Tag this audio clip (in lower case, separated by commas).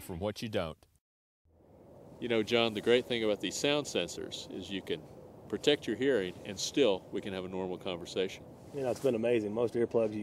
speech